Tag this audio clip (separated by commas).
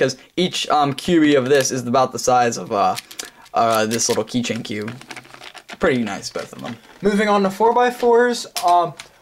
inside a small room, Speech